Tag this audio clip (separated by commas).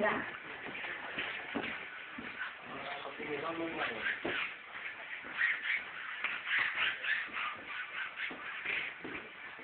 Speech